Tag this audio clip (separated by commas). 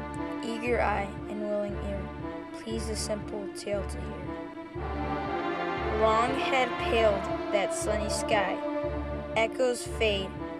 Music, Speech